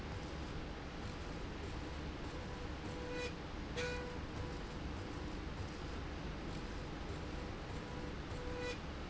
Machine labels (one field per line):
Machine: slide rail